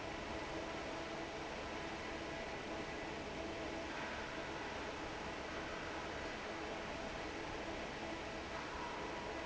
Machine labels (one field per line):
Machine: fan